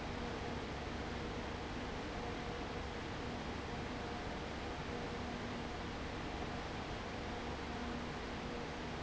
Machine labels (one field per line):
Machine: fan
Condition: abnormal